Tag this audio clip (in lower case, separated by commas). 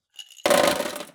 sink (filling or washing), domestic sounds